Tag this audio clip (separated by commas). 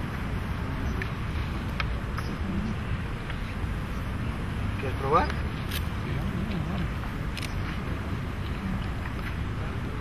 Speech